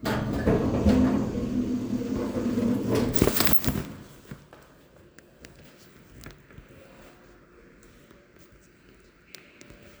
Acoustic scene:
elevator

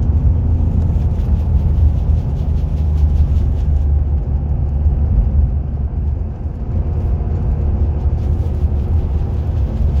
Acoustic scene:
car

